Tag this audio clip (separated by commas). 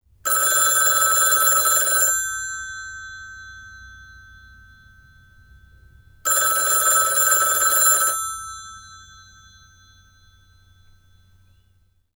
Telephone, Alarm